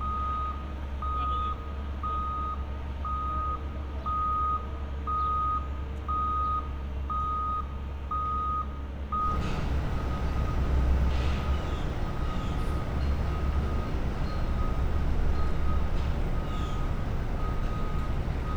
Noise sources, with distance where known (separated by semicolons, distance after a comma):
reverse beeper